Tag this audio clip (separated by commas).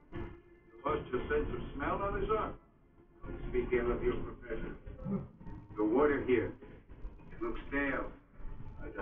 Conversation, man speaking, Speech, Music